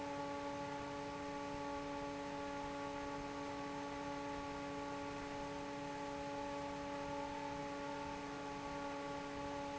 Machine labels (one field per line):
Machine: fan